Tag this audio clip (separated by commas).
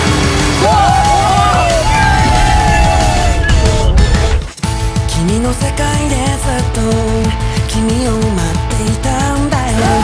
Music